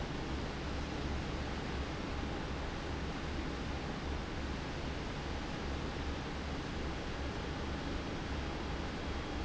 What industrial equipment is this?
fan